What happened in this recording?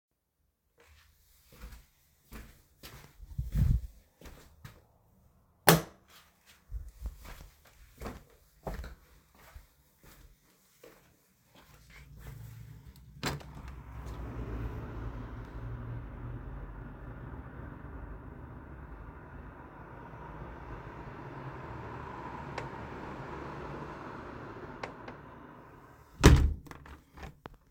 The device is carried by hand during the recording. A light switch is pressed first, followed by footsteps. The window is then opened, street noise becomes audible from outside, and the window is closed again.